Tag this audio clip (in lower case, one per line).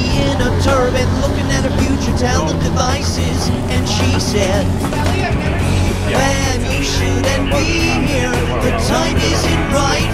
speech
music